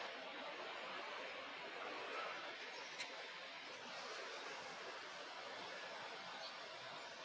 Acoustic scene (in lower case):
park